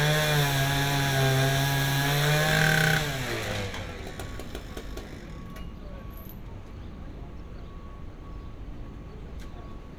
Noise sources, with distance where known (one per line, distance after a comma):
chainsaw, near